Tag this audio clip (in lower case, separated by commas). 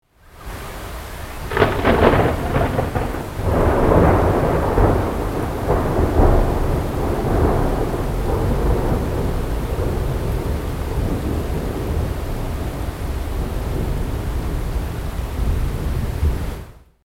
thunder, rain, water, thunderstorm